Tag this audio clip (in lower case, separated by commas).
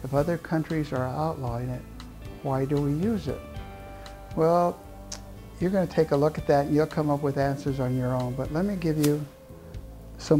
music, speech